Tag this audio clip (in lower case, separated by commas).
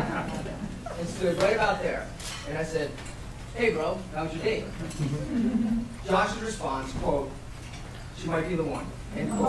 male speech, speech